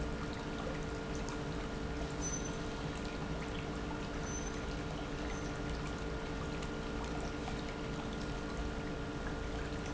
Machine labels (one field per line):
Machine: pump